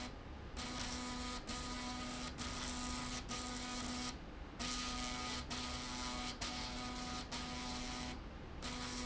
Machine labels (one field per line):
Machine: slide rail